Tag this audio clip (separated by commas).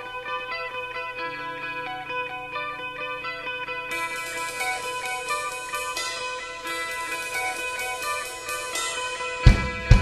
Music